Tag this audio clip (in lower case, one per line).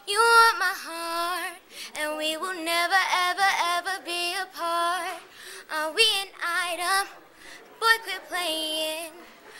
child singing
female singing